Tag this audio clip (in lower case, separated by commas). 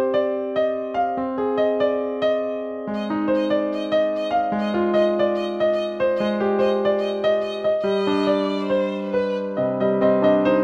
music, musical instrument